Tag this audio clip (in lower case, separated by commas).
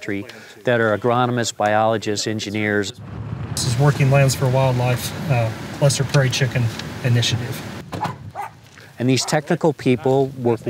animal, outside, rural or natural, speech